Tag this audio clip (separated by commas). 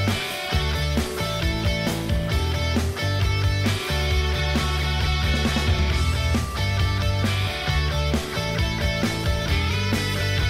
Music